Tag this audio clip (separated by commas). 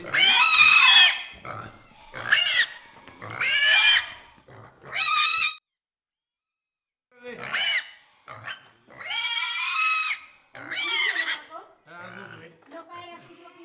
Animal, livestock